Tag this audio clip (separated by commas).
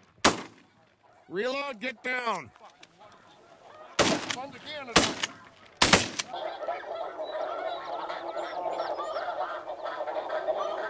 Honk, Goose, Fowl